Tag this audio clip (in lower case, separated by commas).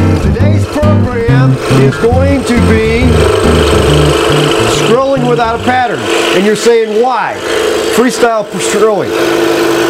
tools, speech, music, power tool